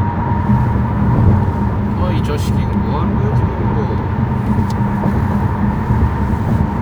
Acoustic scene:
car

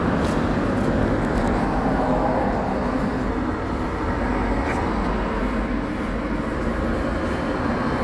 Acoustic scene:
residential area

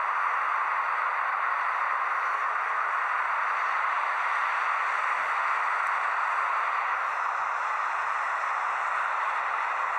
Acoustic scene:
street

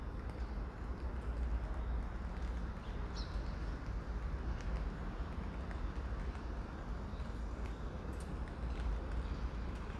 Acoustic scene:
residential area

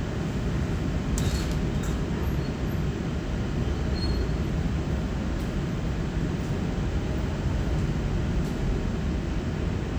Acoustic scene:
subway train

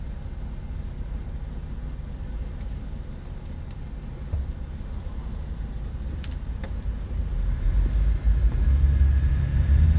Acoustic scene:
car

